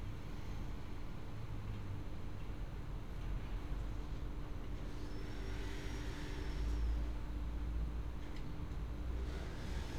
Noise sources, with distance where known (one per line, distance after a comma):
background noise